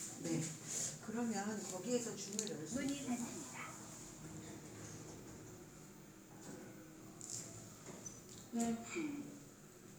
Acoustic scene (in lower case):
elevator